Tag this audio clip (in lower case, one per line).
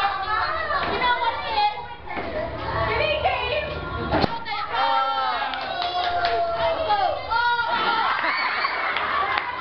inside a large room or hall
speech